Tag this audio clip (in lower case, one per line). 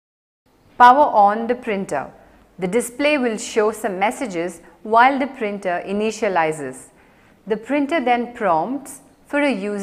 speech